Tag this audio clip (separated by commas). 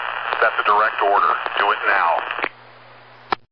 Speech, Human voice